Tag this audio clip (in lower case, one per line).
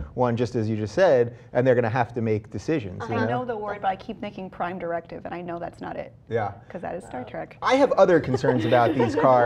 speech